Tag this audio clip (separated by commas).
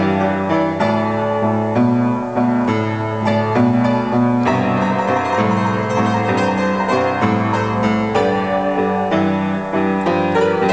Music, Blues